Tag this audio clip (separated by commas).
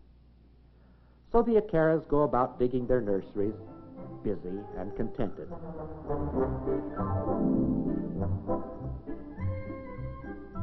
Speech, Music